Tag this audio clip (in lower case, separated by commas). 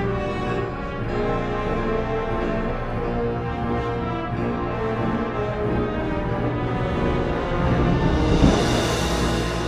music, orchestra